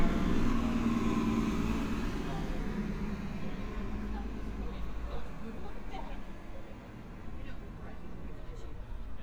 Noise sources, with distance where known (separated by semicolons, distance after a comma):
person or small group talking, near